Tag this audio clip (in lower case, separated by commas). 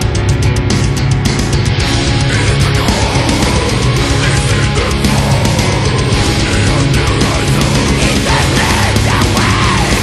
music